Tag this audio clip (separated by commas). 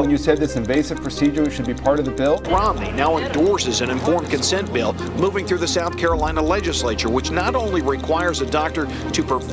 Music, Speech